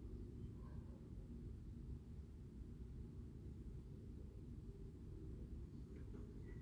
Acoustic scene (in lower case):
residential area